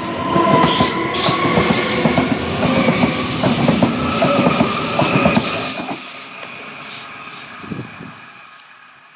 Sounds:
rail transport
train
railroad car
vehicle

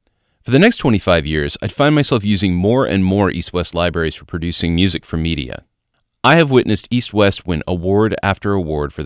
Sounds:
speech

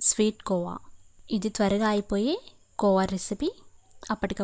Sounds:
speech

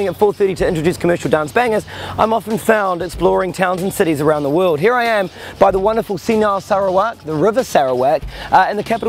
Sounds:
music
speech

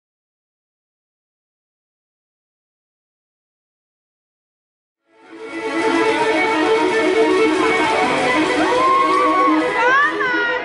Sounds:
music
silence

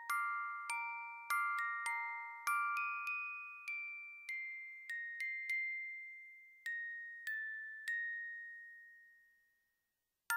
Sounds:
music

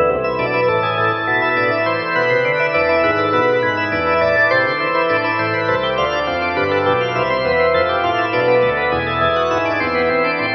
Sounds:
musical instrument
music
fiddle

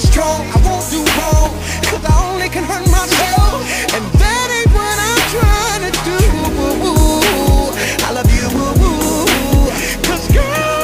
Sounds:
music

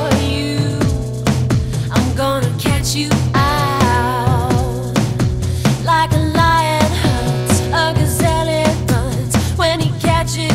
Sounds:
music

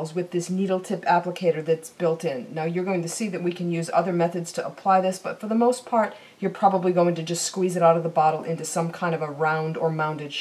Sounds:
speech

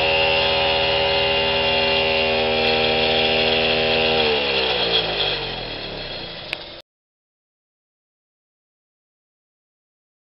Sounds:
outside, rural or natural
drill

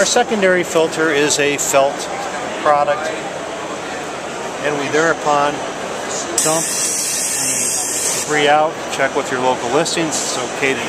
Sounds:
inside a public space
speech

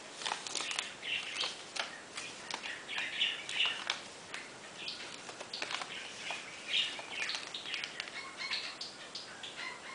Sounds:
roll

